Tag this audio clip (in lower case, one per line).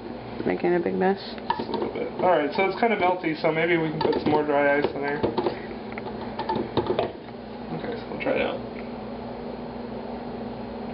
speech